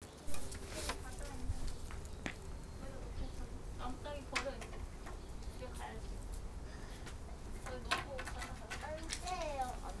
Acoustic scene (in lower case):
park